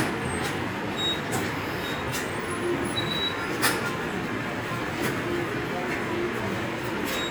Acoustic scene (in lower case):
subway station